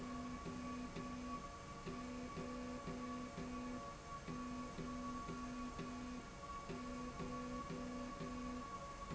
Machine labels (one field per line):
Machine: slide rail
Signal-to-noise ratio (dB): 6 dB